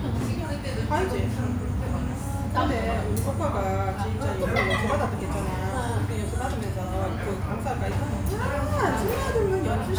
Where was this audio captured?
in a restaurant